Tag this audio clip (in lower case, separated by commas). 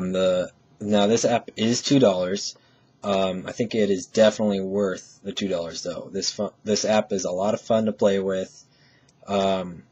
speech